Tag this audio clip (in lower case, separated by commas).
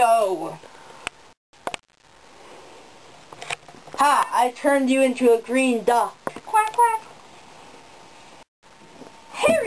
speech, quack